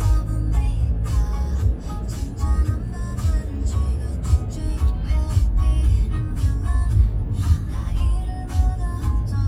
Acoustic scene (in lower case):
car